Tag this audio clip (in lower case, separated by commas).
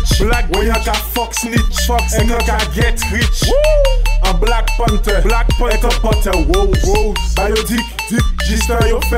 music